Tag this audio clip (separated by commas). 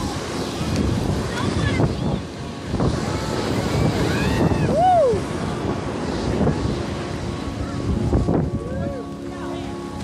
sea waves